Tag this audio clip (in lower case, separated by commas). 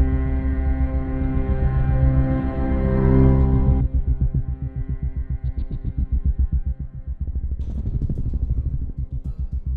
sound effect, music